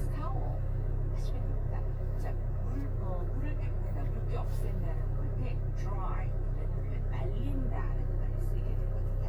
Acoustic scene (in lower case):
car